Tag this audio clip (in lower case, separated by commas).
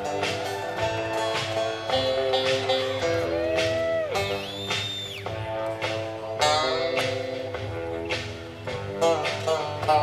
music